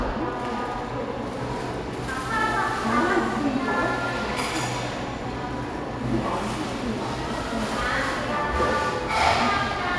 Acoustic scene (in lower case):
cafe